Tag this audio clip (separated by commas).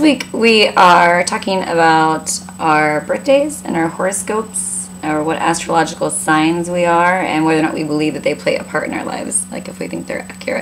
Speech